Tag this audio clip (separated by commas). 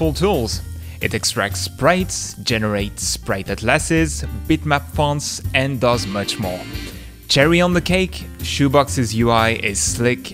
Music, Speech